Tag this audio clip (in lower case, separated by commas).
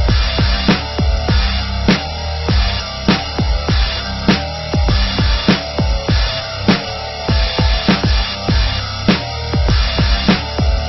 music